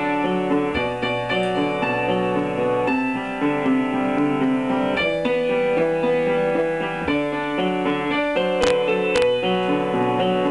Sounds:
Musical instrument, Music

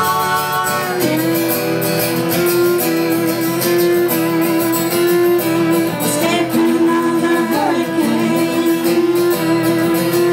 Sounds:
Violin, Music, Musical instrument

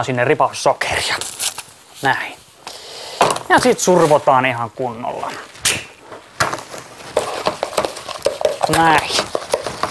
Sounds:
Speech

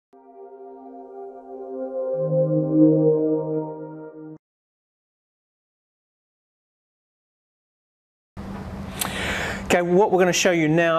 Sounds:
Music, Speech, Ambient music

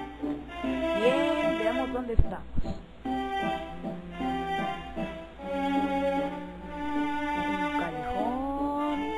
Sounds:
Music, Speech

